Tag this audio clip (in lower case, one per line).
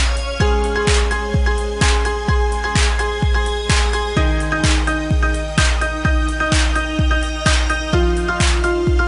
music
soundtrack music